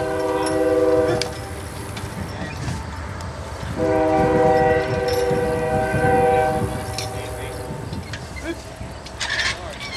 A train horn blares in the distance followed by people speaking